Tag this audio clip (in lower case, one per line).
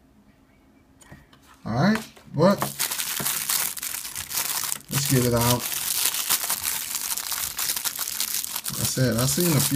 inside a small room
crinkling
speech